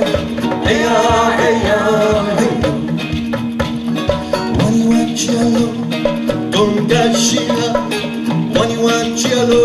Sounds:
music, singing

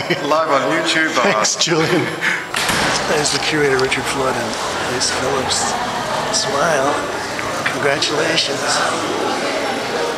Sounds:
speech, inside a large room or hall

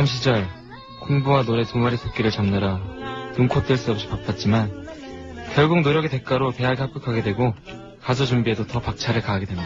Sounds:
speech, music

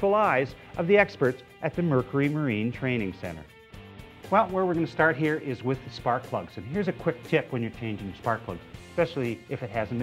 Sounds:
music, speech

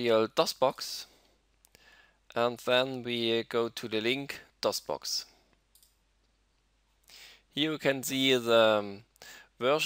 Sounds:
speech

